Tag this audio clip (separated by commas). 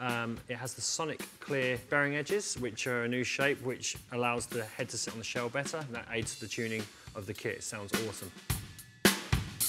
Musical instrument, Speech, Drum kit, Music, Drum